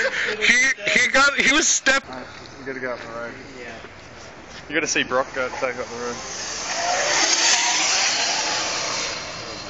Several men conversing as a vehicle speeds by